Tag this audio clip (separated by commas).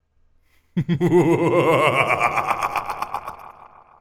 Human voice, Laughter